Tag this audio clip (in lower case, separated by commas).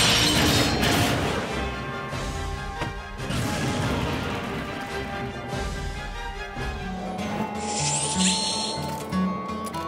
music, crash